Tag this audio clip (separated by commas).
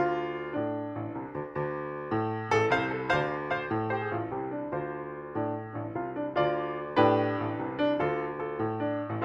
Music